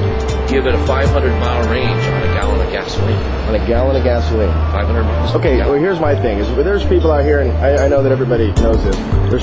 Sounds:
speech, music

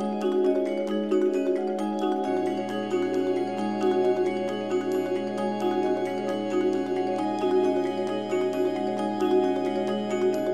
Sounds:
vibraphone, music

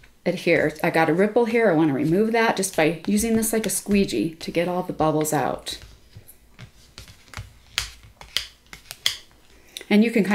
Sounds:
speech, inside a small room

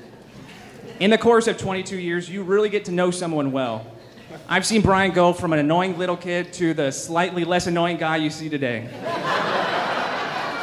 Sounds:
narration, speech, male speech

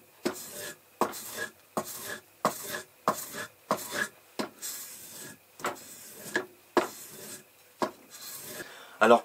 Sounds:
sharpen knife

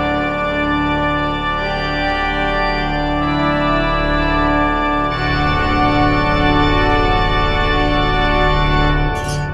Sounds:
organ, hammond organ

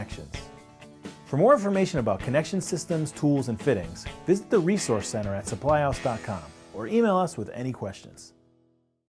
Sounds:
music, speech

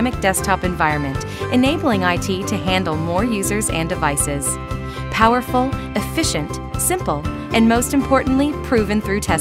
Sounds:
music, speech

